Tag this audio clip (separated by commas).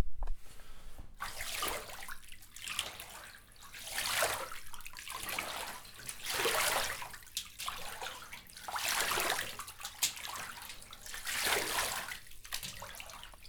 Bathtub (filling or washing), home sounds